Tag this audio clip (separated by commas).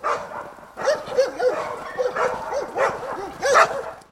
Domestic animals, Bark, Dog, Animal